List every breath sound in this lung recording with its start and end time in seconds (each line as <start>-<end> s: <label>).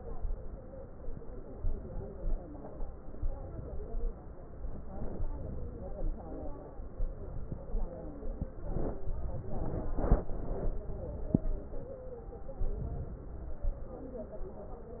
0.00-0.54 s: inhalation
1.56-2.33 s: inhalation
3.15-3.93 s: inhalation
5.34-6.05 s: inhalation
7.05-7.76 s: inhalation
9.08-9.94 s: inhalation
12.62-13.53 s: inhalation